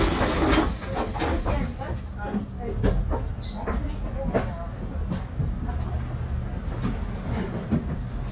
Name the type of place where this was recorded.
bus